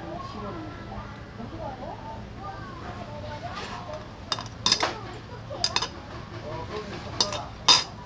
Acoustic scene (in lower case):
restaurant